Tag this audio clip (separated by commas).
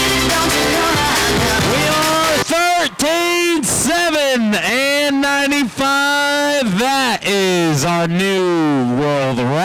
Speech, Music